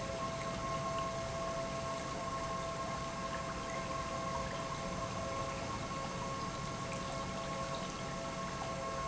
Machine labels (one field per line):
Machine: pump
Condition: normal